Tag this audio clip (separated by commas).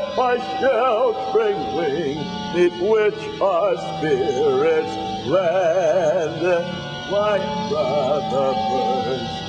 Music, Male singing, Synthetic singing